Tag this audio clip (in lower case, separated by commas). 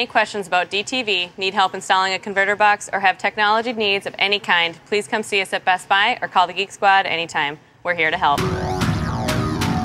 speech, music